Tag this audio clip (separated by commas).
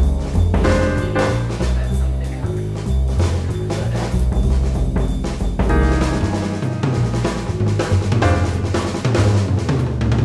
Timpani, Speech, Music